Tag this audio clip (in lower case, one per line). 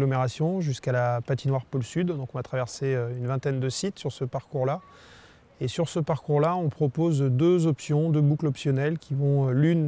speech